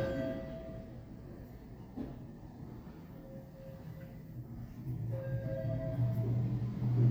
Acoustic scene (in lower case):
elevator